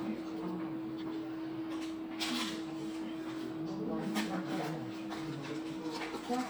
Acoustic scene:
crowded indoor space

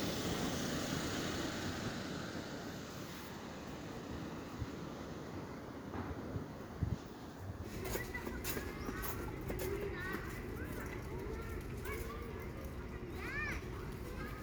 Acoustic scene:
residential area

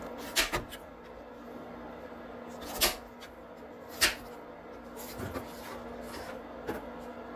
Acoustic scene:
kitchen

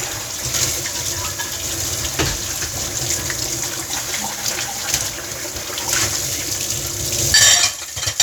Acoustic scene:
kitchen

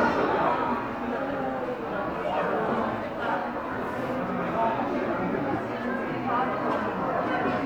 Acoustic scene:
crowded indoor space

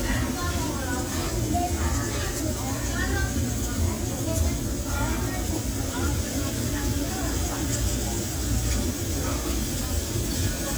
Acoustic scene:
restaurant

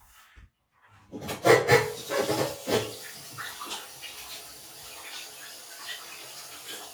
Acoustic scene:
restroom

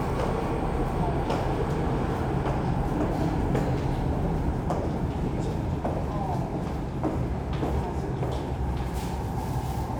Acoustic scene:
subway station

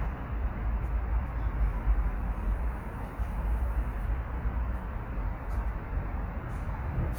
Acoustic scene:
residential area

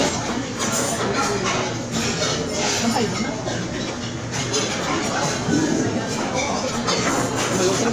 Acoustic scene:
crowded indoor space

